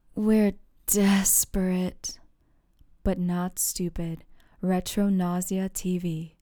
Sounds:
woman speaking
human voice
speech

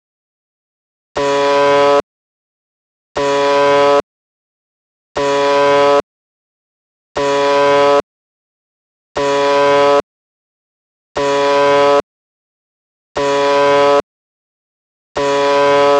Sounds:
alarm

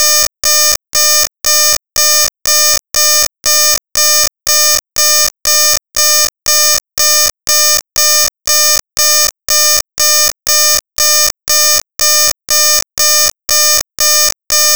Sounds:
alarm

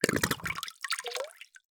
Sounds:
gurgling
water

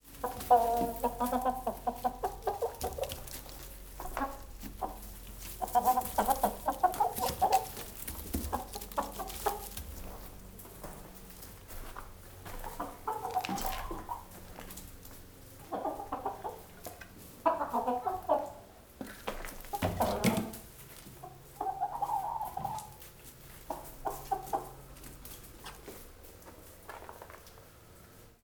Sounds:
rooster
livestock
animal
fowl

